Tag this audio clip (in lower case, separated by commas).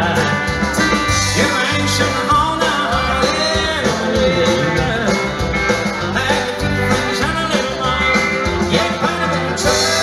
music, country, bluegrass